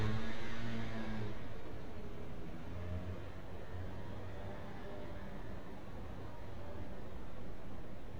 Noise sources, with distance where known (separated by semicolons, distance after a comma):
medium-sounding engine, far